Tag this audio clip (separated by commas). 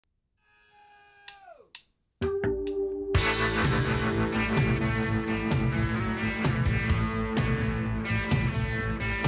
Music